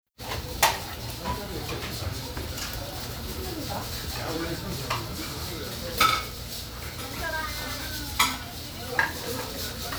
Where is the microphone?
in a restaurant